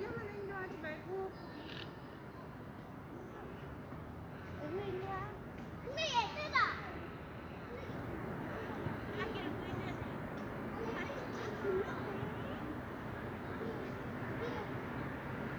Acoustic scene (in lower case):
residential area